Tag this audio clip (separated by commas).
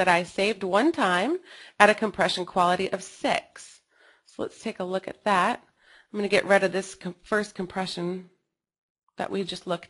Speech